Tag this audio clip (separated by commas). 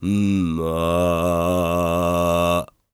Singing, Human voice, Male singing